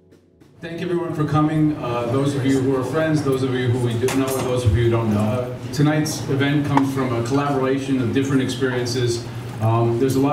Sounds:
speech

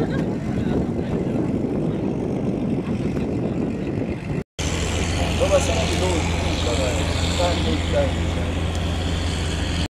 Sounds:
motorboat, vehicle, boat, speech

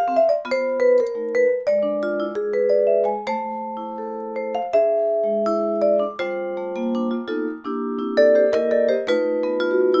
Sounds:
playing vibraphone

